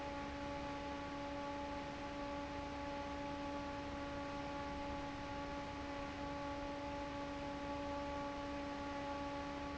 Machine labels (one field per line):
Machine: fan